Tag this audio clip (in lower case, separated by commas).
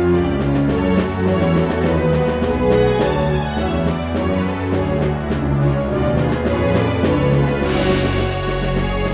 music, soundtrack music, jazz